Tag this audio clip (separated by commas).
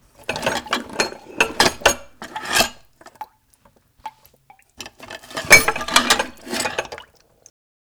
home sounds, dishes, pots and pans